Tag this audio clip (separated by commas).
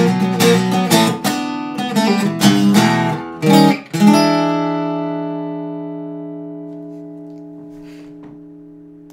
Guitar, inside a small room, Musical instrument, Music, Plucked string instrument